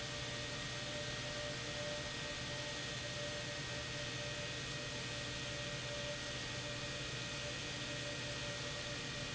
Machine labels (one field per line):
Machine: pump